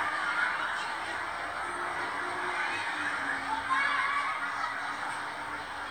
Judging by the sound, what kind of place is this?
residential area